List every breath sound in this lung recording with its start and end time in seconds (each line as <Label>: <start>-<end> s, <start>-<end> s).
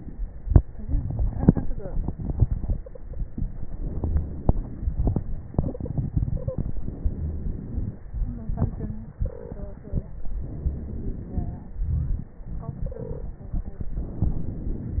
Inhalation: 2.90-5.50 s, 6.77-8.06 s, 10.44-12.40 s, 13.93-15.00 s
Exhalation: 5.51-6.78 s, 8.06-10.41 s, 12.41-13.95 s
Stridor: 2.69-3.21 s, 5.50-5.94 s, 6.26-6.70 s, 9.19-9.78 s, 12.80-13.39 s
Crackles: 6.77-8.06 s, 10.44-12.40 s, 13.93-15.00 s